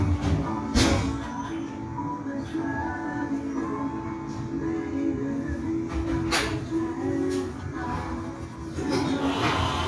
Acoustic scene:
cafe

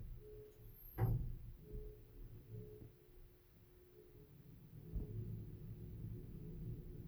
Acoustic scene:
elevator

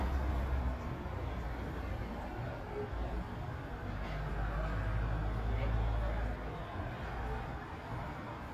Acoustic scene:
residential area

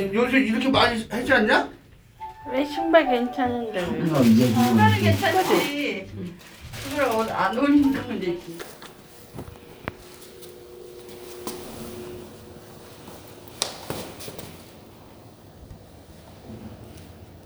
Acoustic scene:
elevator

